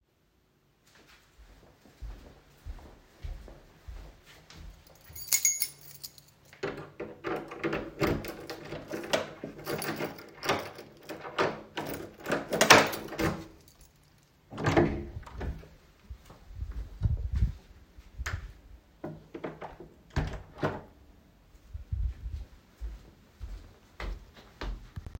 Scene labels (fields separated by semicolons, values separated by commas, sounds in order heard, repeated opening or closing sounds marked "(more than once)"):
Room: hallway; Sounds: footsteps, keys, door (more than once)